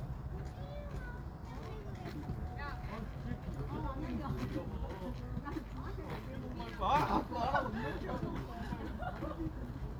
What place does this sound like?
residential area